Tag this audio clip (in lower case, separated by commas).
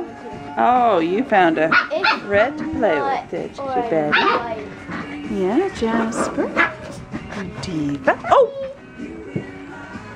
music, speech